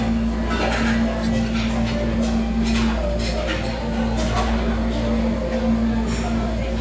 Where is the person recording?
in a restaurant